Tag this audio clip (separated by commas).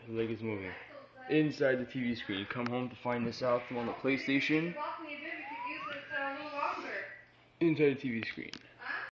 Speech